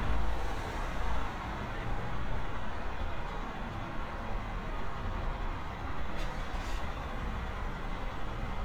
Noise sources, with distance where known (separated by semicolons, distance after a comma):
large-sounding engine